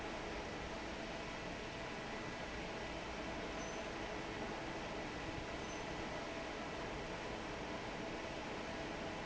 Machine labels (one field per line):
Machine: fan